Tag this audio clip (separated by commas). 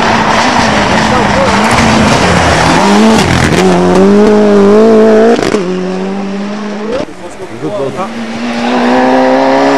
Speech